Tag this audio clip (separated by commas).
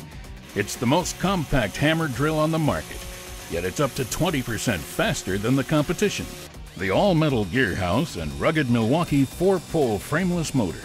Speech, Music, Tools